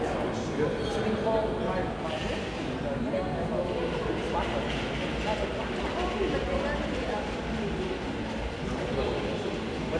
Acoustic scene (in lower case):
crowded indoor space